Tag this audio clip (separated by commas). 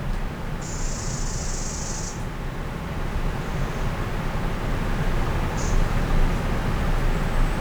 Bird vocalization, Bird, Animal, Wild animals